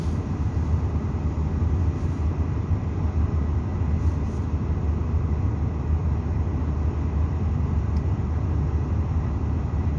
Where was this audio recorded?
in a car